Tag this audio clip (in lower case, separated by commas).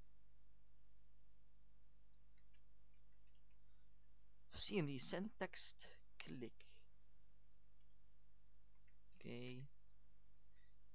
speech, narration